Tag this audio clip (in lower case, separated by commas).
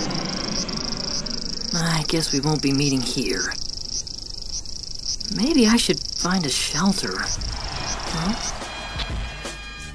speech, music